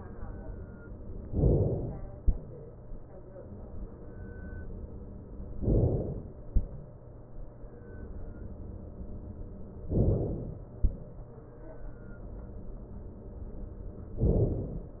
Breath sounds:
1.28-2.18 s: inhalation
5.58-6.48 s: inhalation
9.88-10.78 s: inhalation
14.20-15.00 s: inhalation

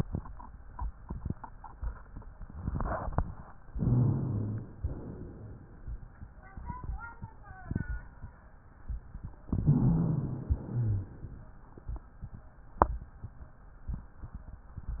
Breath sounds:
3.71-4.76 s: inhalation
3.71-4.76 s: wheeze
4.80-5.85 s: exhalation
9.45-10.50 s: inhalation
9.45-10.50 s: wheeze
10.54-11.31 s: exhalation
10.54-11.31 s: wheeze

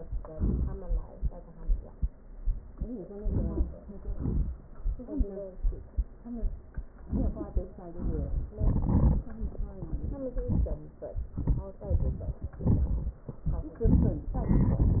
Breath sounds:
3.17-3.75 s: inhalation
4.16-4.59 s: exhalation
7.08-7.69 s: inhalation
7.93-8.54 s: exhalation

